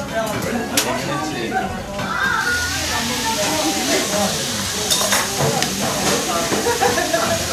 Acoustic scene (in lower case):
restaurant